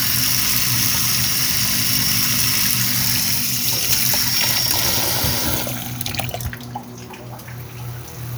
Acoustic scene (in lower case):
kitchen